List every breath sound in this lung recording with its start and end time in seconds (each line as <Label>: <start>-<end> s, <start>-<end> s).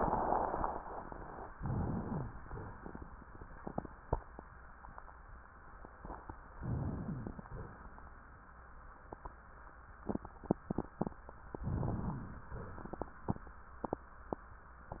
Inhalation: 1.50-2.34 s, 6.57-7.44 s, 11.71-12.54 s
Rhonchi: 2.03-2.34 s, 7.04-7.44 s, 12.03-12.41 s